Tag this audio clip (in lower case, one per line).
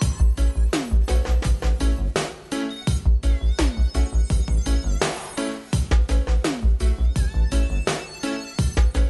music